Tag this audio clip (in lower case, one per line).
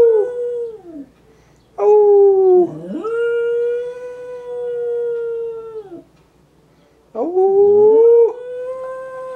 yip